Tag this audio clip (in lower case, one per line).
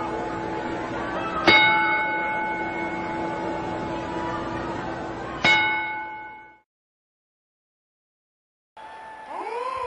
speech